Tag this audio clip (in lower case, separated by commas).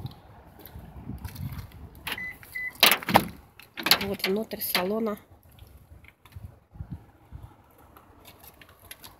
speech